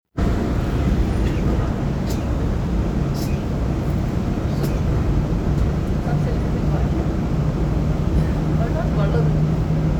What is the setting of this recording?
subway train